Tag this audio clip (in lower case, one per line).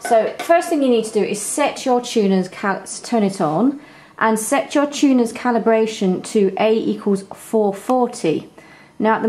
speech